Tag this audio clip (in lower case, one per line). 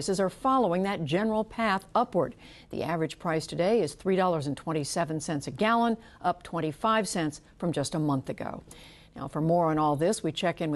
speech